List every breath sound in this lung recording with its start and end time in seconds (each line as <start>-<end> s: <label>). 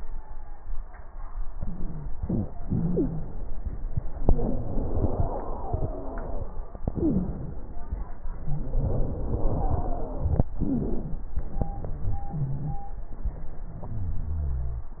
1.51-2.12 s: inhalation
1.51-2.12 s: wheeze
2.15-2.63 s: exhalation
2.15-2.63 s: wheeze
2.68-3.60 s: inhalation
2.68-3.60 s: wheeze
4.27-6.54 s: exhalation
4.27-6.54 s: wheeze
6.84-7.74 s: inhalation
6.84-7.74 s: wheeze
8.15-10.42 s: exhalation
8.15-10.42 s: wheeze
10.61-11.40 s: inhalation
10.61-11.40 s: wheeze
11.90-12.82 s: exhalation
11.90-12.82 s: crackles